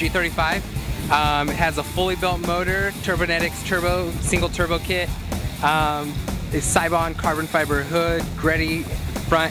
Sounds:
Speech, Music

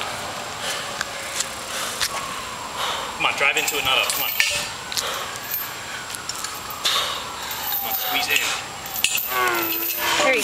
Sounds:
Speech

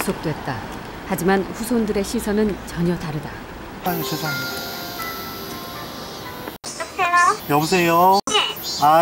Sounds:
outside, urban or man-made, Speech, Music

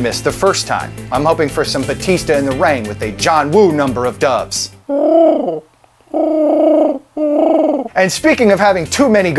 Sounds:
Speech, Music, inside a large room or hall

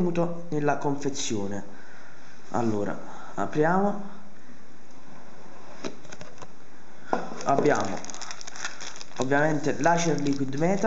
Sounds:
Speech

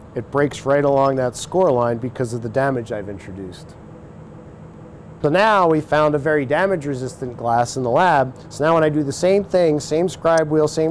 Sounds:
Speech

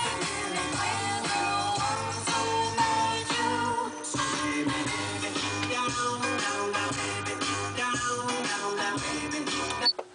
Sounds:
Radio, Music

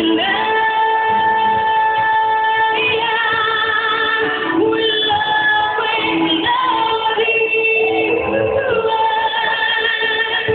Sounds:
Music, Female singing

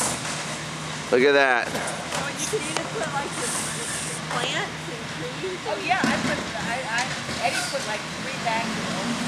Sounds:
Truck, Vehicle, Speech

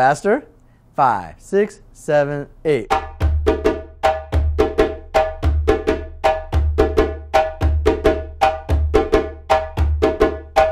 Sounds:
playing djembe

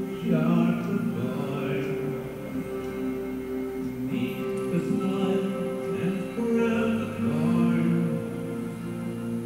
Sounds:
Music

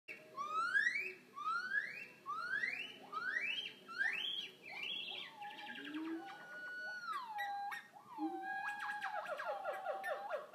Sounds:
gibbon howling

